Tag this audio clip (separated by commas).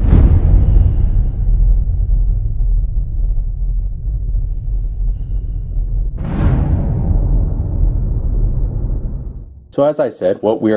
Speech, Music